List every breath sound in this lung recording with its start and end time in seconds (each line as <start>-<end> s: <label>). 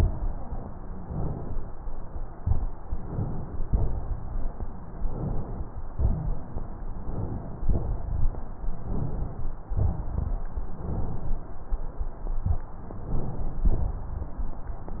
0.99-1.69 s: inhalation
2.35-2.68 s: exhalation
2.90-3.66 s: inhalation
3.68-4.00 s: exhalation
4.95-5.66 s: inhalation
5.94-6.64 s: exhalation
5.94-6.64 s: rhonchi
6.95-7.65 s: inhalation
7.65-8.29 s: exhalation
8.82-9.56 s: inhalation
9.71-10.46 s: exhalation
10.70-11.44 s: inhalation
12.96-13.70 s: inhalation
13.66-14.12 s: exhalation